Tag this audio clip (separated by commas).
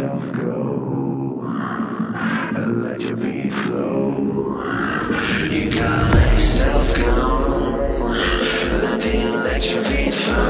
Music